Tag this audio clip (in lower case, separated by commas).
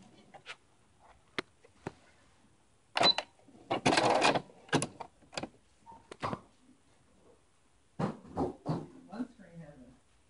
sewing machine, inside a small room